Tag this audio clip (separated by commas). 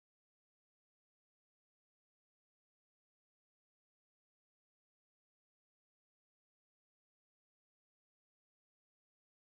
Music, Speech